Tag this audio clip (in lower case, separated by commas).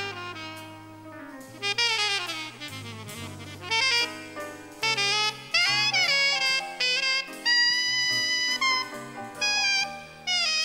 musical instrument, music